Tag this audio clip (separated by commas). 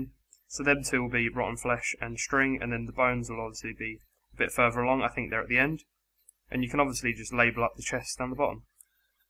Speech